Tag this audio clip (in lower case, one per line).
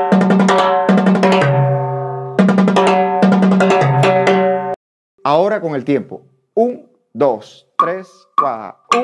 playing timbales